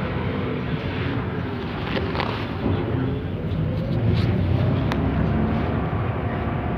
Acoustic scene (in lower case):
bus